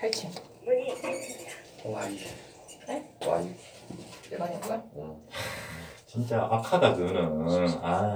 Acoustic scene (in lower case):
elevator